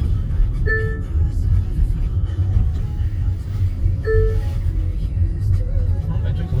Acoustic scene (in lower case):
car